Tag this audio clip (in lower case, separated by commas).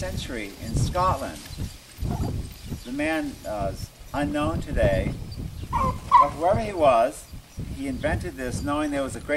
speech, outside, rural or natural